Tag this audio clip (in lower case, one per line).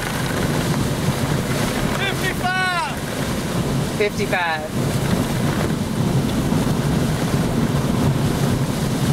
wind noise (microphone)
wind